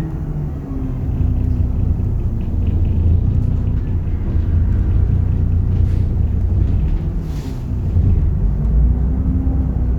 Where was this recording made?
on a bus